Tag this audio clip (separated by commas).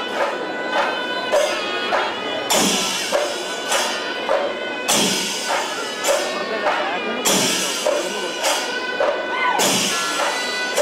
Tambourine, Music, Speech